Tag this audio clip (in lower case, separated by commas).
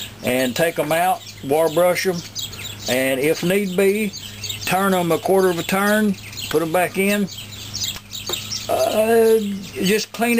bird song, chirp, bird